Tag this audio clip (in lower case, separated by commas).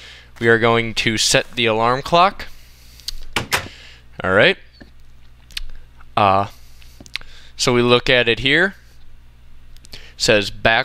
speech